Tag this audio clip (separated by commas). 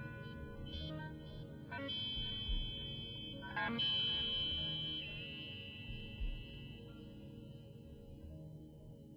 Electronic music, Music